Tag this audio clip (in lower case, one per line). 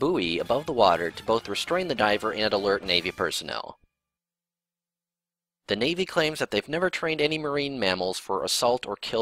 music
speech